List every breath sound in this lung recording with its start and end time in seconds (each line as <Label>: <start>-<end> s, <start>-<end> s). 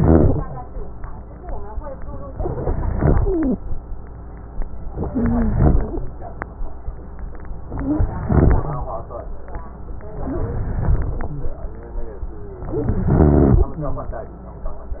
Inhalation: 0.00-0.48 s, 2.58-3.57 s, 5.08-5.86 s, 7.76-8.88 s, 10.21-11.33 s, 12.63-13.76 s
Wheeze: 3.15-3.57 s, 5.08-5.86 s, 7.78-8.06 s, 10.23-10.63 s, 12.60-13.78 s
Rhonchi: 0.00-0.48 s, 2.60-3.09 s